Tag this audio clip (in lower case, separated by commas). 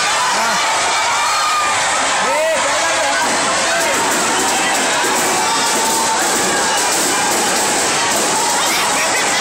speech